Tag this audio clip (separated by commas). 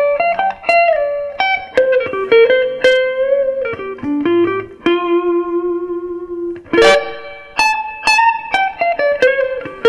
Musical instrument, Strum, Electric guitar, Guitar, Plucked string instrument, Music